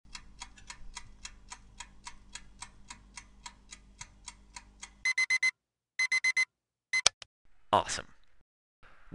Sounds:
speech

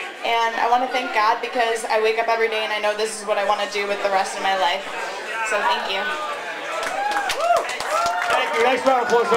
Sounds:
speech
female speech

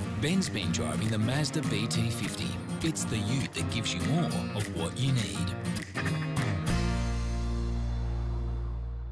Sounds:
music
speech

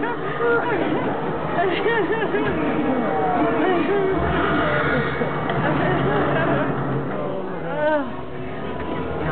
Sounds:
speech

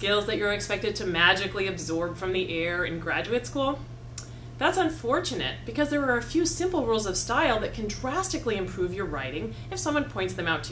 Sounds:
speech

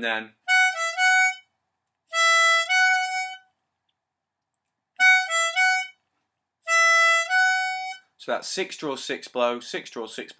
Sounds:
playing harmonica

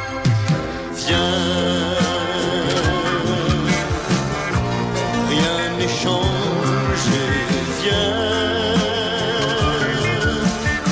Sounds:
music

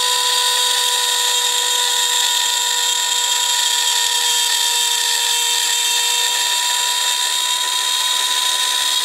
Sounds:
wood
tools
drill

